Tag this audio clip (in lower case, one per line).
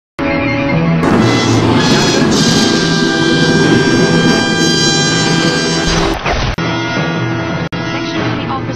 music
speech